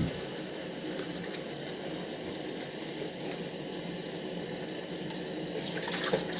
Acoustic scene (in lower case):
restroom